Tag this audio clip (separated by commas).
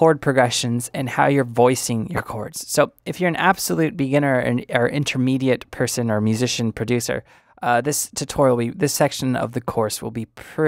Speech